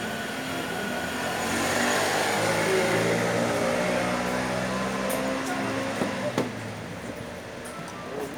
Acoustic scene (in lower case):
cafe